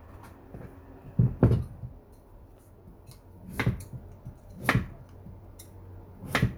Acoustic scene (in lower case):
kitchen